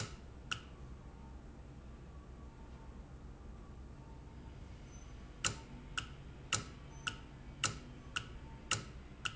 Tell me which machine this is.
valve